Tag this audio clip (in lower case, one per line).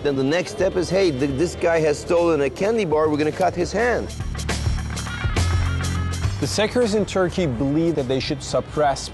speech
music